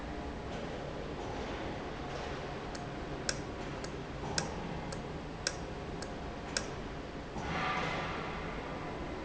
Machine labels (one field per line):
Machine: valve